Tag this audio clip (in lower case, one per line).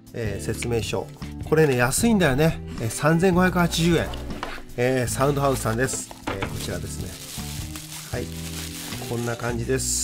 music
speech
acoustic guitar